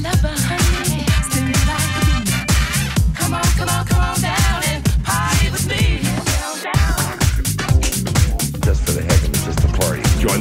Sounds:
music
disco
speech

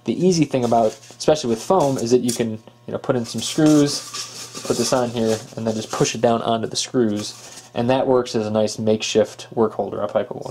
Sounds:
speech
inside a small room

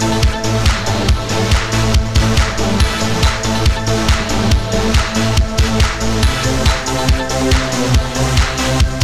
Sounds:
dance music
music

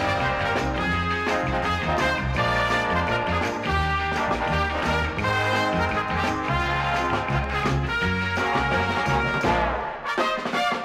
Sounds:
soundtrack music
music
theme music

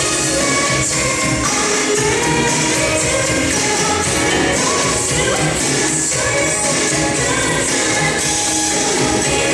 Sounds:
music
rhythm and blues

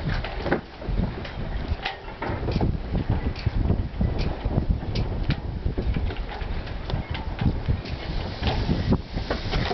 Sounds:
sailboat

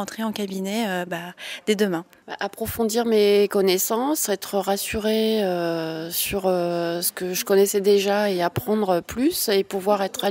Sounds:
speech

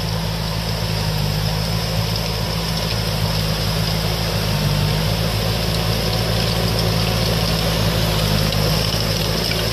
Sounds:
outside, rural or natural
vehicle

